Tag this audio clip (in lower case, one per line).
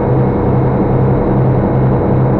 water vehicle
vehicle
engine